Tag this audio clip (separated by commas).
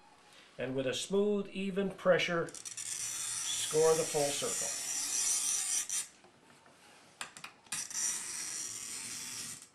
Speech